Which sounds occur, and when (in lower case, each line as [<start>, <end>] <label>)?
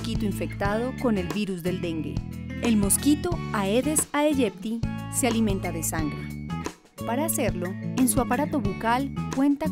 [0.00, 9.71] music
[0.01, 2.15] woman speaking
[2.47, 4.38] woman speaking
[5.09, 6.61] woman speaking
[7.01, 9.71] woman speaking